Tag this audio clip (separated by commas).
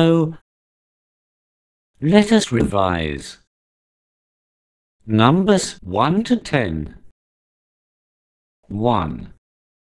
Speech